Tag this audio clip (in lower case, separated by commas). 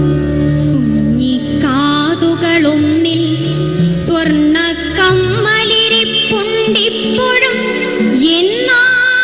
music of asia, music, singing